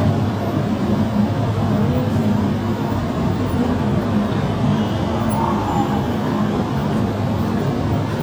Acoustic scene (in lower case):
subway station